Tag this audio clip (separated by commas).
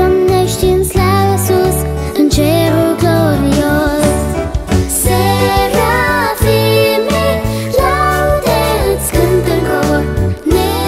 Music